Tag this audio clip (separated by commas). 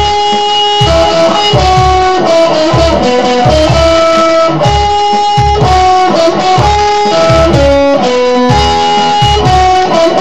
Plucked string instrument, Guitar, Strum, Music, Musical instrument, Acoustic guitar